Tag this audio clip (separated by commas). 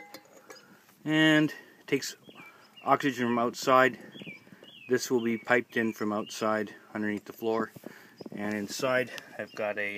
Speech